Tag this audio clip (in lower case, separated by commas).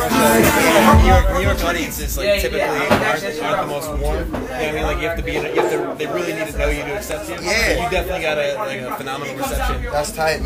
music, speech